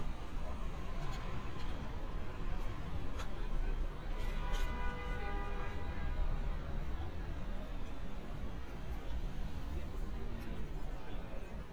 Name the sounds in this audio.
car horn